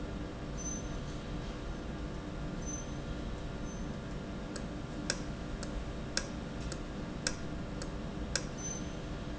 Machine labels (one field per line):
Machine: valve